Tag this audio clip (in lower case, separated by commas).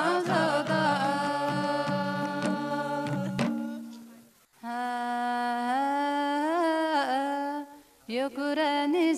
female singing, choir, music